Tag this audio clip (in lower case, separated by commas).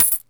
domestic sounds, coin (dropping)